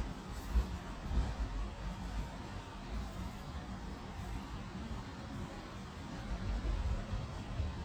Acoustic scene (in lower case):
residential area